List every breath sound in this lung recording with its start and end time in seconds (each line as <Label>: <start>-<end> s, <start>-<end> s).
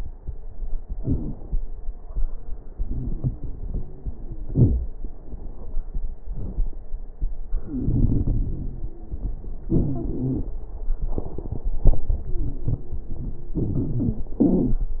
Inhalation: 0.91-1.59 s, 7.62-8.87 s, 13.60-14.22 s
Exhalation: 9.67-10.55 s, 14.38-15.00 s
Wheeze: 4.21-4.60 s, 7.65-9.25 s, 9.71-10.46 s, 14.45-14.86 s
Crackles: 0.91-1.59 s, 13.60-14.22 s